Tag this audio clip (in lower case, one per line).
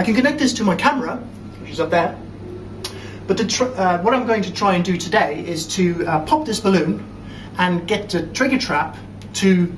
speech